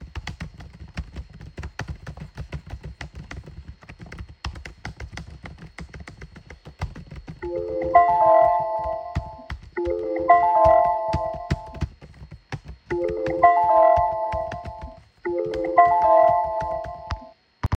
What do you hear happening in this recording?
I was typing on my laptop when the phone began to ring while the laptop fan was running.